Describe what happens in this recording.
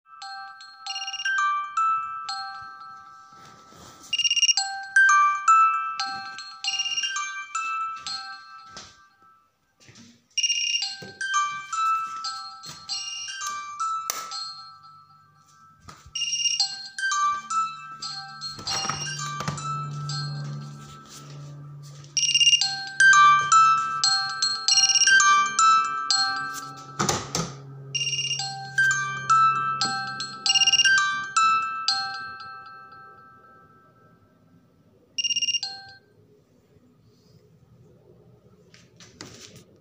Alarm started ringing, got up, turned light on, windows & door open & Turned off alarm.